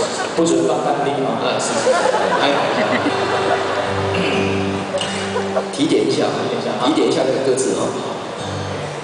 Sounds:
music, speech

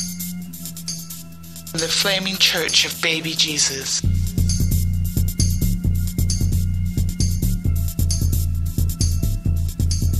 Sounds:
music, speech

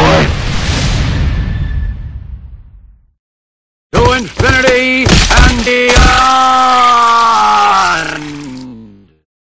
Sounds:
speech

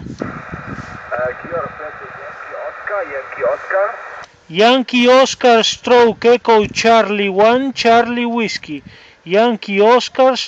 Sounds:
speech, radio

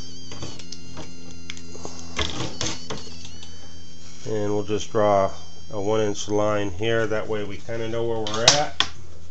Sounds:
inside a small room, speech

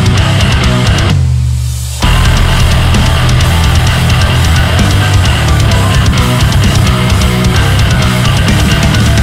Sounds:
music

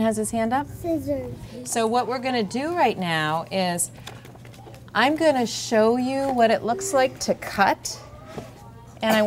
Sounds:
speech, child speech

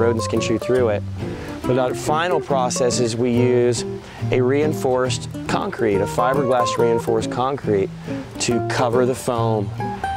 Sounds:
speech, music

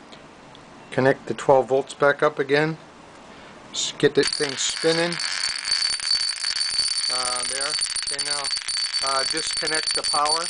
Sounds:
speech

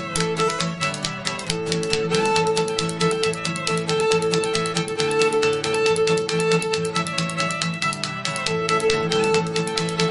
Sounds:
musical instrument, plucked string instrument, music, pizzicato, fiddle, guitar

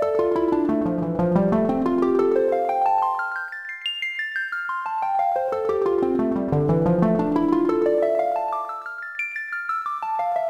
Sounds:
glockenspiel

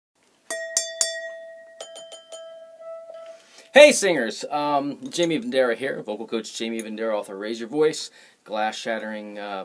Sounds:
speech

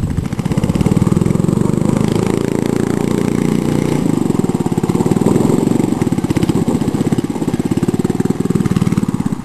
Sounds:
car, vehicle

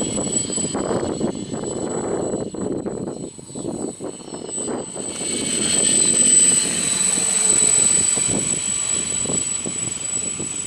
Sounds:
wind noise, wind noise (microphone)

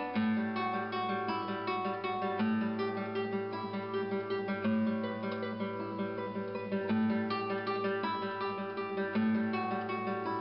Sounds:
music, plucked string instrument, guitar, musical instrument, strum

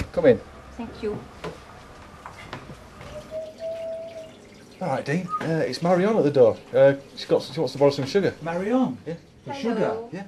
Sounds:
speech, inside a small room

